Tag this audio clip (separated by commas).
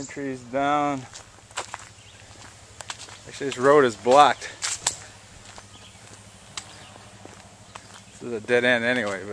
Speech